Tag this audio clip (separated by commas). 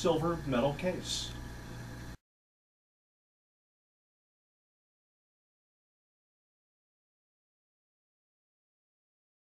Speech